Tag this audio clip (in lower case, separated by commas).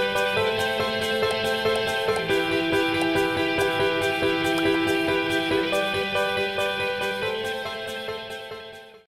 music